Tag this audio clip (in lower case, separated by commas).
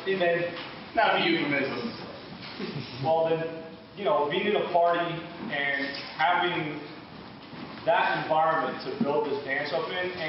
speech